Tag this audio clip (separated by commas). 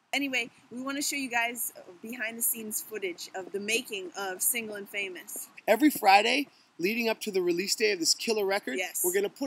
Speech